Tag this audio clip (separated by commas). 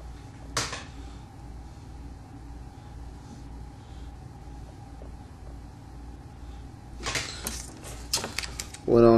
Speech